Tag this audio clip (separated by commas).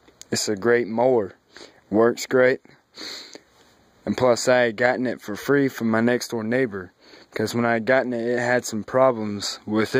Speech